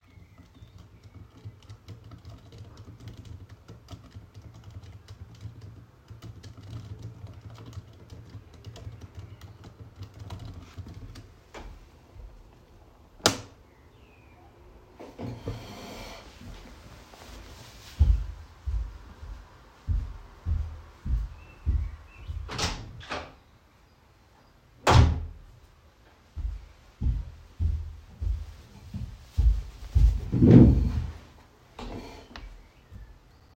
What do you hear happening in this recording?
I worked on the computer then turned off the lights. I pushed my chair back walked to the door to open and close it and walked back to pull my chair to the desk.